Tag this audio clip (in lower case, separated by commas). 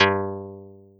musical instrument, plucked string instrument, music, guitar